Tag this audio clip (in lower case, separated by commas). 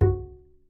bowed string instrument, music, musical instrument